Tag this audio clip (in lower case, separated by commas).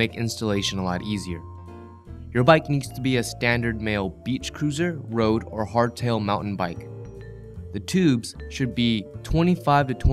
speech, music